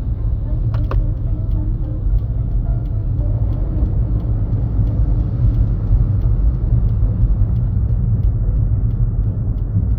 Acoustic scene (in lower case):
car